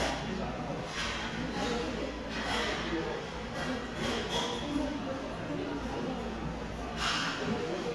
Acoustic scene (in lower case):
restaurant